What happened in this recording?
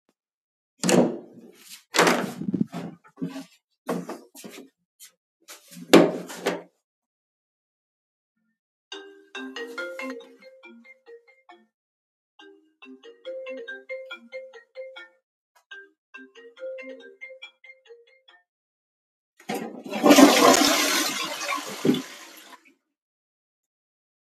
open toilet door. rang my phone, flished the toilet